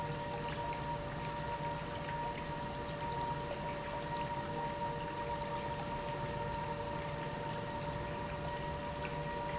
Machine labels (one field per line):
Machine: pump